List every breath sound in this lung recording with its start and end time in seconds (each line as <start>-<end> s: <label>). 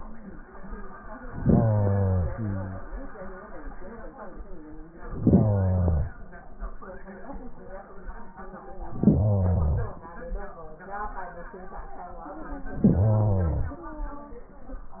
1.21-2.36 s: inhalation
2.34-3.49 s: exhalation
5.05-6.21 s: inhalation
8.86-10.04 s: inhalation
12.69-13.87 s: inhalation